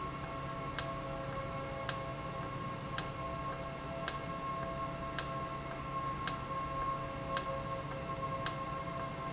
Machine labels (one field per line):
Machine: valve